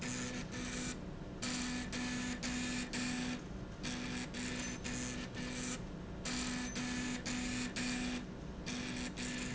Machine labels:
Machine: slide rail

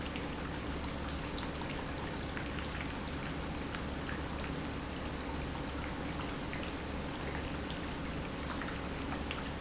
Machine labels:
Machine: pump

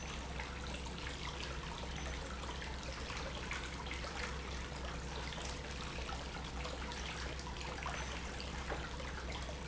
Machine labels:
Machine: pump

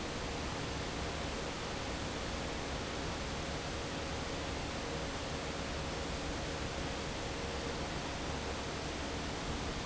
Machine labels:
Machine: fan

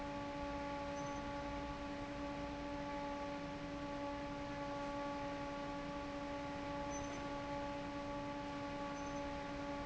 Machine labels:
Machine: fan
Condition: normal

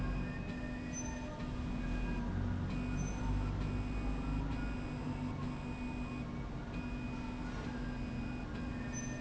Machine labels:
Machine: slide rail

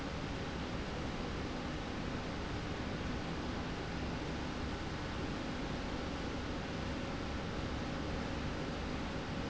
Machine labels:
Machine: slide rail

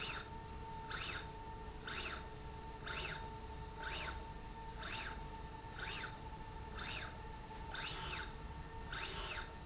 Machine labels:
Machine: slide rail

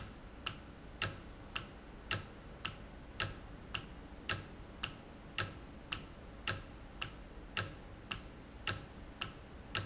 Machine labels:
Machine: valve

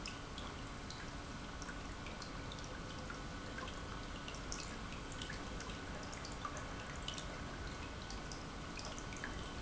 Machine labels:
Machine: pump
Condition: normal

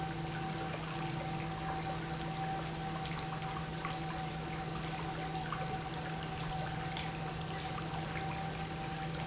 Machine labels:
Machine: pump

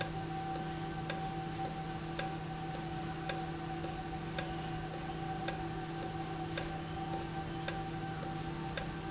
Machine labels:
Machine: valve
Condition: normal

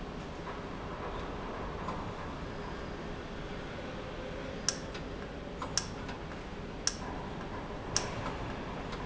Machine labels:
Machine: valve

